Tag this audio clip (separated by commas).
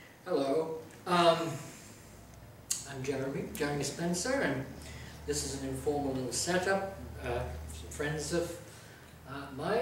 Speech